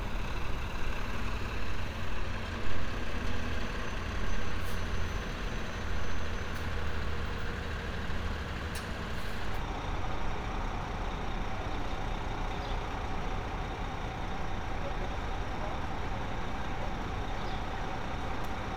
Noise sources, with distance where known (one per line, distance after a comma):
large-sounding engine